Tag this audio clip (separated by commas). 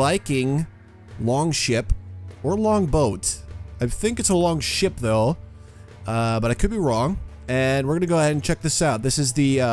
Music, Speech